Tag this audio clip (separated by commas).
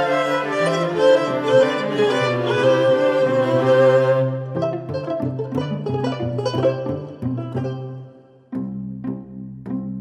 Music